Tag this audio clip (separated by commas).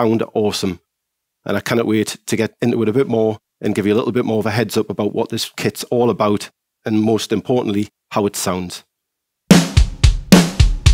Drum kit, Music, Speech, Drum, Musical instrument